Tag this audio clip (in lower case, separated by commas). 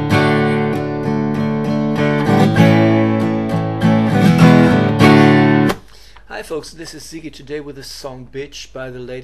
music, musical instrument, guitar, plucked string instrument, speech, strum